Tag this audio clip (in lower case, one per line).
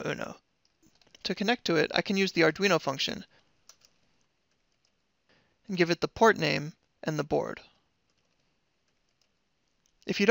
speech